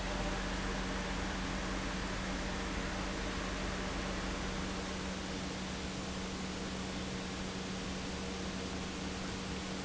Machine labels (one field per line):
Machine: pump